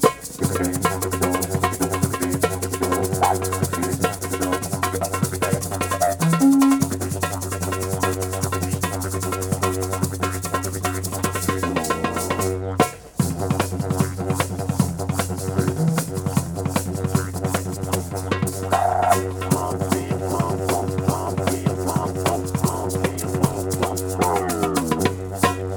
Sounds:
musical instrument
music

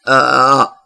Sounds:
burping

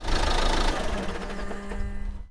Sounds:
vehicle
car
motor vehicle (road)
engine

